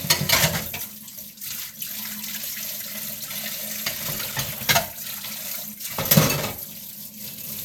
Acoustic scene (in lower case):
kitchen